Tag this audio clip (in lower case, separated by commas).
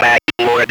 speech, human voice